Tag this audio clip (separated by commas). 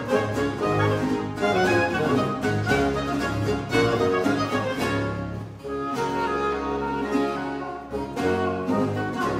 Violin, Bowed string instrument, Cello